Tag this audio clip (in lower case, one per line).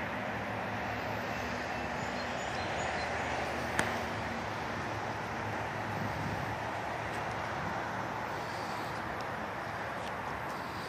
vehicle